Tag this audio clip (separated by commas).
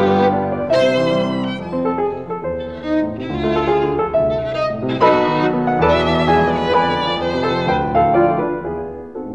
fiddle, Music, Musical instrument